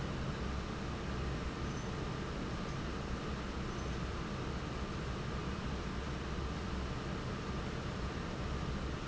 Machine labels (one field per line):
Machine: fan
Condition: normal